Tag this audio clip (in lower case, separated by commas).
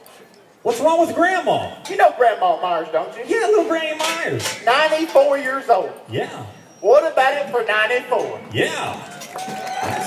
outside, urban or man-made, speech